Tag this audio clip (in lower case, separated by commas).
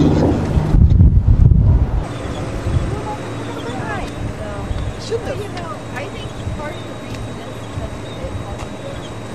wind, wind noise (microphone)